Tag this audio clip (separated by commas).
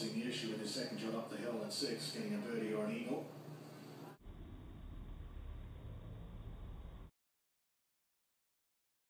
Speech